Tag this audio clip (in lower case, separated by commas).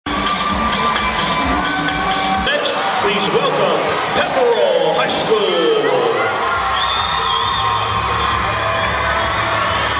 speech, music, cheering